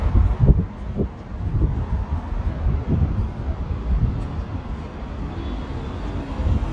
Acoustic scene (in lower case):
residential area